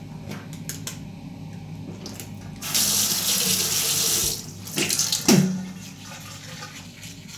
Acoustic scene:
restroom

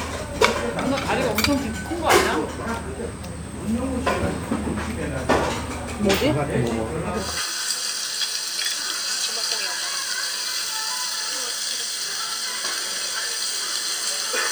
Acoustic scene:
restaurant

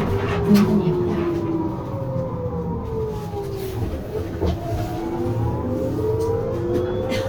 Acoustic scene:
bus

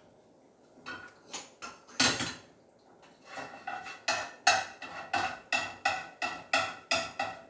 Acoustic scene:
kitchen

